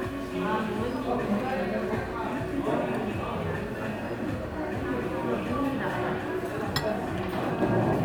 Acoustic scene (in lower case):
crowded indoor space